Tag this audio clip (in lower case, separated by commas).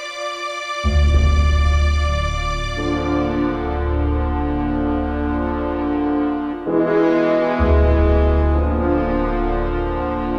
music, outside, rural or natural